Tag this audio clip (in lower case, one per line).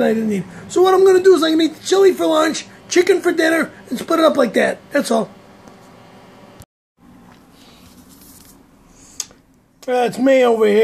speech